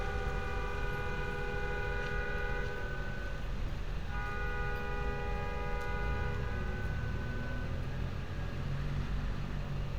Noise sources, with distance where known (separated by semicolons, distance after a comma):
engine of unclear size; car horn